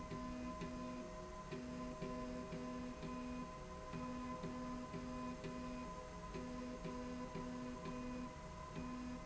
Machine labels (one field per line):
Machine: slide rail